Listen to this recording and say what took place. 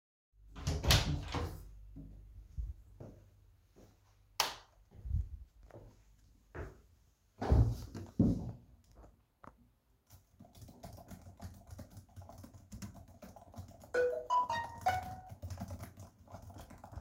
I opend the door and turned on the light, then walked to my desk and sat down, after sitting down i started working on my computer during which i got a phone notification